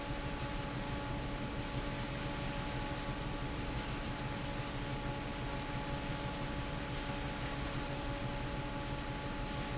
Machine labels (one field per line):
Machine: fan